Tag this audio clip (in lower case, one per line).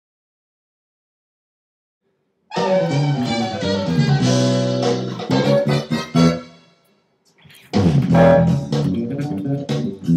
guitar
bass guitar
plucked string instrument
music
musical instrument